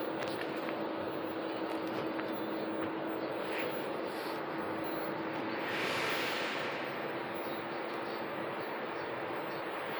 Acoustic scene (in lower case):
bus